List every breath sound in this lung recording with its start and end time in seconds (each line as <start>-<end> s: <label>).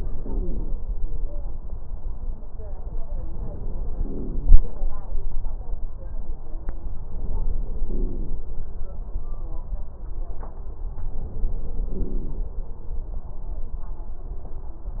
0.00-0.78 s: inhalation
3.99-4.70 s: inhalation
7.86-8.46 s: inhalation
11.98-12.58 s: inhalation